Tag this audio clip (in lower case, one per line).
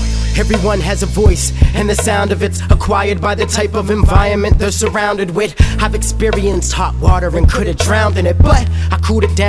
music